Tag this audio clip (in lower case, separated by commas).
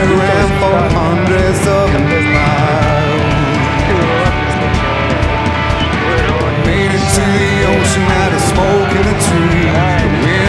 speech, music